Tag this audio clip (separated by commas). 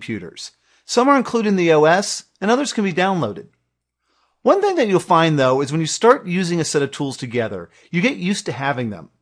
Speech